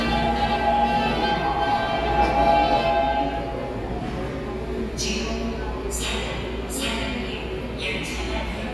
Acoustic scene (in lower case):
subway station